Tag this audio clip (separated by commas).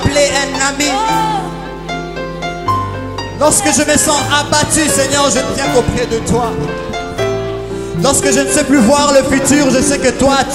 Music